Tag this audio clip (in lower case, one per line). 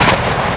explosion